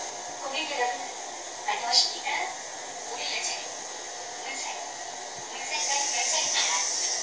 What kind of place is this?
subway train